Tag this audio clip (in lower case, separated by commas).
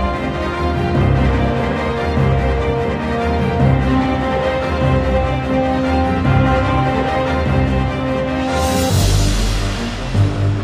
soundtrack music, music